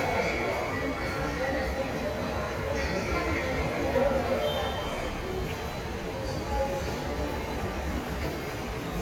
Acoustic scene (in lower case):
subway station